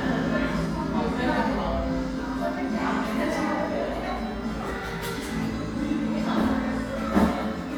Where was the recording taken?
in a crowded indoor space